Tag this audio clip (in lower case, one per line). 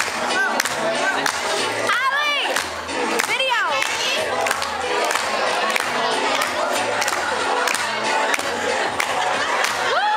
inside a large room or hall
music
speech